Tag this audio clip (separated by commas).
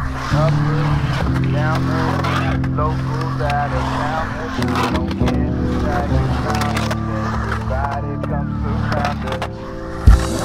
Skateboard, Music